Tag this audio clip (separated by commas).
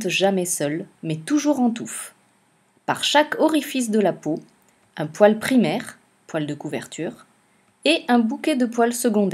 Speech